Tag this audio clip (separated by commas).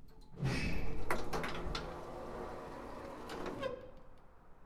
Domestic sounds, Sliding door, Door